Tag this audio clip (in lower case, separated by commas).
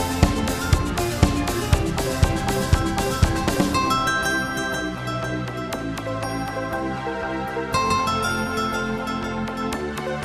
music